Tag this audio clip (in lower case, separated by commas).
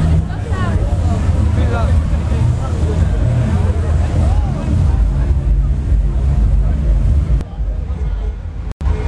speech, music